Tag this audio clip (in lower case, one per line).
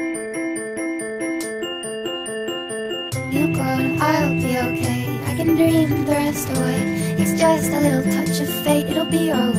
music
dubstep